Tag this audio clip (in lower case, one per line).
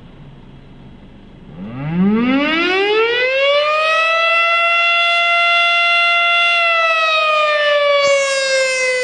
civil defense siren
siren